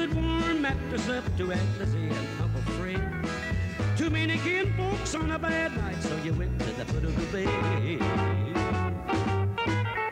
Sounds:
blues, music

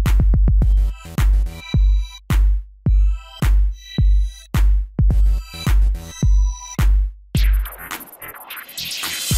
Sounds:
music

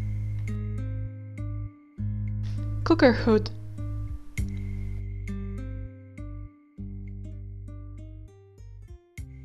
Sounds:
speech, music, inside a small room

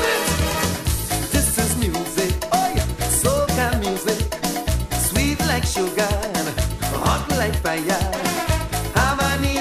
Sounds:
music, dance music

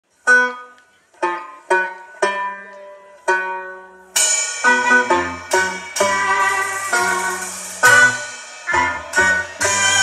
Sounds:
banjo, music

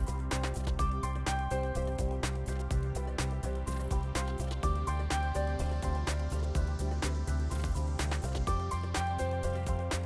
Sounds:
music

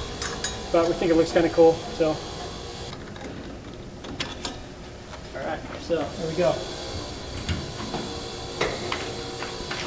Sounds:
car, speech, vehicle, tire squeal

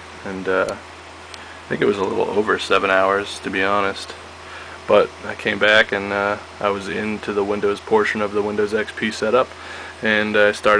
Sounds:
inside a small room, speech

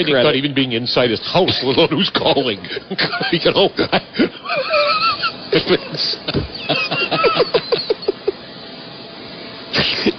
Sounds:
speech, snicker

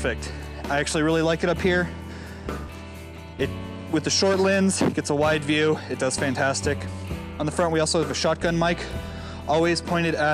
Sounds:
music, speech

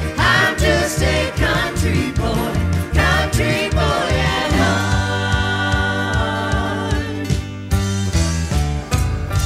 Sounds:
country, music

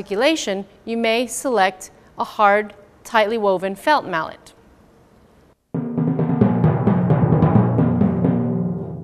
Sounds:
timpani, speech, music

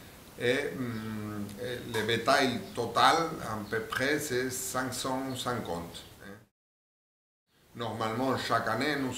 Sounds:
speech

